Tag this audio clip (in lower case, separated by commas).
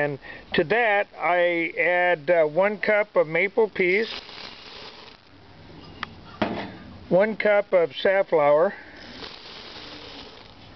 inside a small room, speech